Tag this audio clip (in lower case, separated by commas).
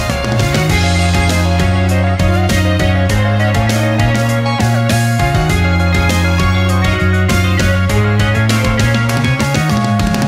music